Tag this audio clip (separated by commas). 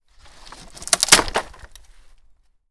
Crack, Wood